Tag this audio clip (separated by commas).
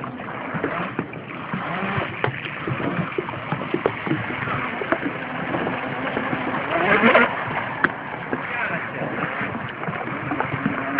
Speech, Boat